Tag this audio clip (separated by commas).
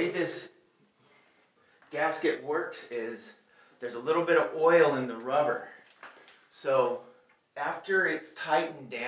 Speech